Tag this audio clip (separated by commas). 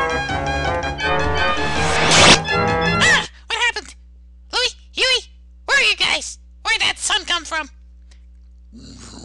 Speech, Music